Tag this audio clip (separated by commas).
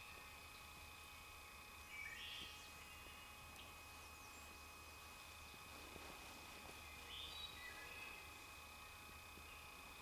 Bird, Animal